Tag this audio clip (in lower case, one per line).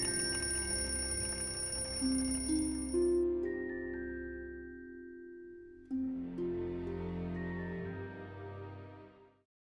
music